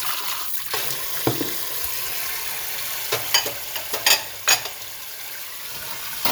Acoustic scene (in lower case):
kitchen